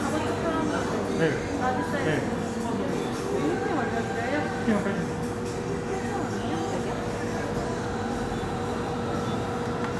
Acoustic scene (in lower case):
cafe